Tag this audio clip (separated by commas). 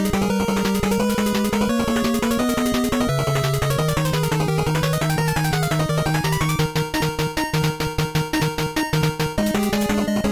Music